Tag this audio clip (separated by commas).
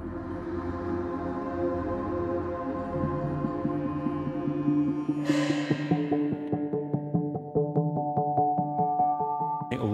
Ambient music